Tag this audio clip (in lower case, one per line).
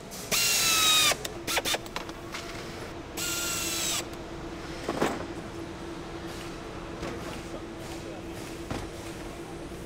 mechanisms
tools
power tool